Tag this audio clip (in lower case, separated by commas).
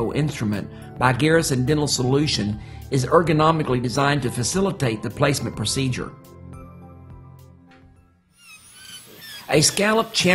speech, music